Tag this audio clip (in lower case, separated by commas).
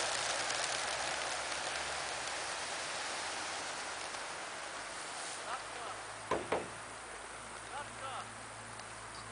speech, outside, rural or natural, pigeon